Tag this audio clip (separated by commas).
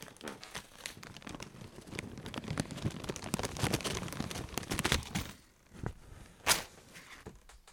Crumpling